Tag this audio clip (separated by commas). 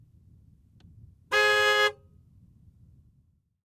Car, Vehicle, Motor vehicle (road), Alarm, car horn